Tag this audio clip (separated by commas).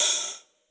Musical instrument, Music, Percussion, Hi-hat, Cymbal